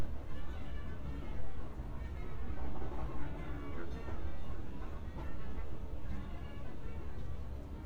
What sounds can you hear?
music from an unclear source